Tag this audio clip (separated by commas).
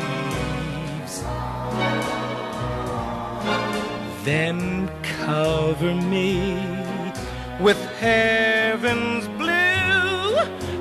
Music, Lullaby